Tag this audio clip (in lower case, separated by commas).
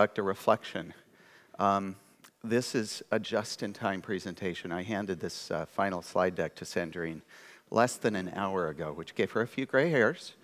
speech